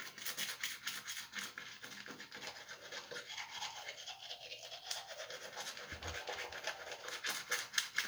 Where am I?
in a restroom